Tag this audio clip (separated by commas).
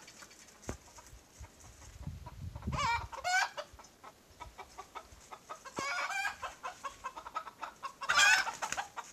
chicken crowing